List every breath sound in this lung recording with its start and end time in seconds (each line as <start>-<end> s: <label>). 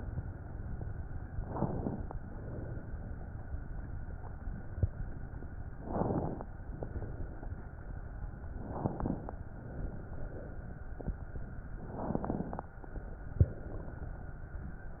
1.46-2.13 s: inhalation
2.20-2.87 s: exhalation
5.81-6.47 s: inhalation
6.70-7.65 s: exhalation
8.67-9.34 s: inhalation
9.60-10.55 s: exhalation
11.95-12.73 s: inhalation
13.38-14.33 s: exhalation